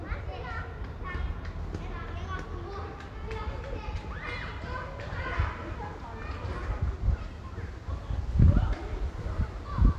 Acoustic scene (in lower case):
residential area